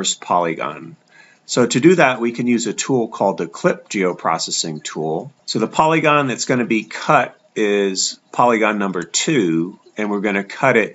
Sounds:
Speech

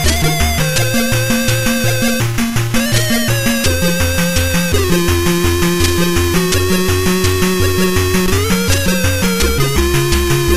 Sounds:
Music

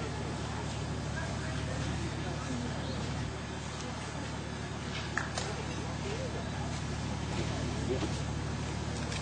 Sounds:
Speech

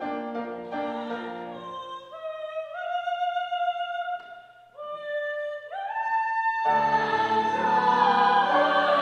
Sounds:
Music, Choir

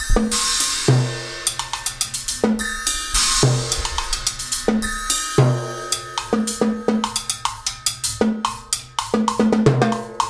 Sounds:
playing timbales

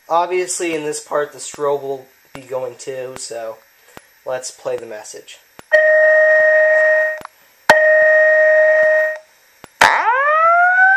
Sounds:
Fire alarm, Speech

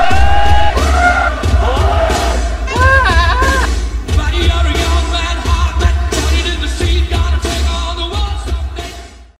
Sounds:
Bleat, Sheep, Music

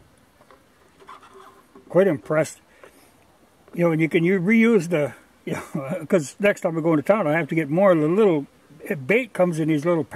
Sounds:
Fly, bee or wasp, Insect

